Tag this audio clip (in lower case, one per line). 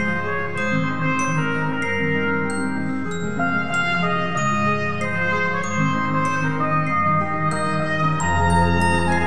trumpet
glockenspiel
mallet percussion
brass instrument